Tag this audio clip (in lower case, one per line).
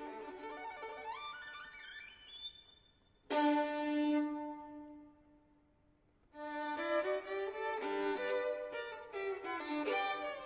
musical instrument
music
fiddle